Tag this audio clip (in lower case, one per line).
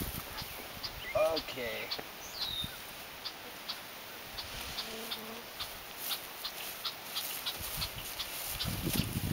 outside, rural or natural
bee or wasp
speech